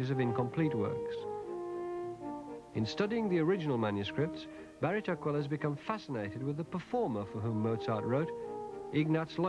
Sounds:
brass instrument, french horn, speech, trombone, music

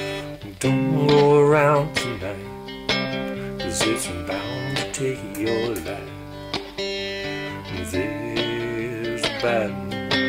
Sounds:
acoustic guitar, guitar, music, musical instrument, strum, plucked string instrument

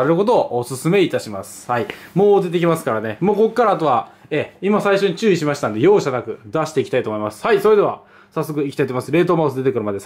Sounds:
speech

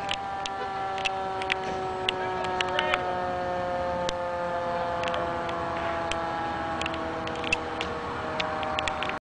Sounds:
vehicle, speech, medium engine (mid frequency)

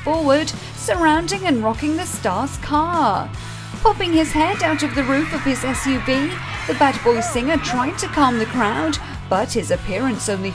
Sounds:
music, speech

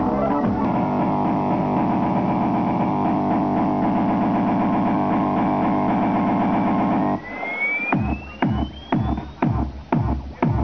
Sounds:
music, inside a large room or hall

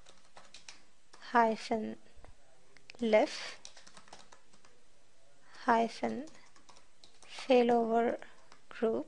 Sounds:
computer keyboard

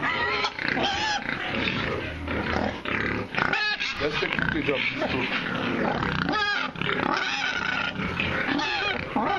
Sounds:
pig, animal, pig oinking, speech, oink

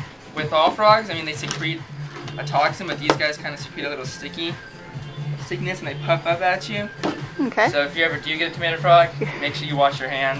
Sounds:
speech, music

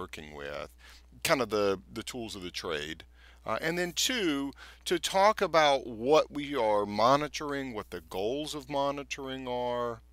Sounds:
speech

